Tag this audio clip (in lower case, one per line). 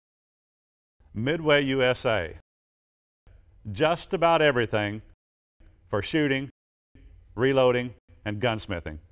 speech